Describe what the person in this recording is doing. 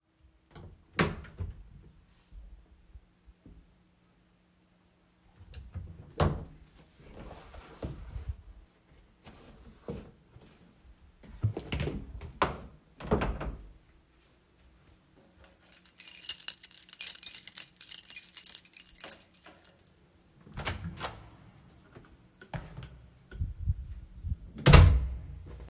I opened the wardrobe and closed it. Then I opened another wardrobe and closed it. I grabbed my keys and opened the front door. Finally I went out of the apartment and closed the door